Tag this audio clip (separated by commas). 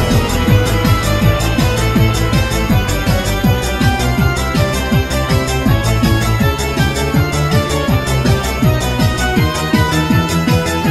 Music